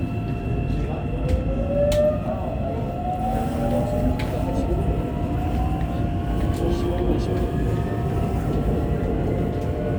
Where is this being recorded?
on a subway train